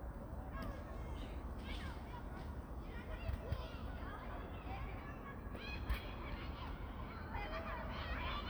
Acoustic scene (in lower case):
park